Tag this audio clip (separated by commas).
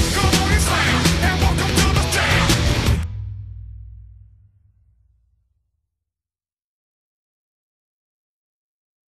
Music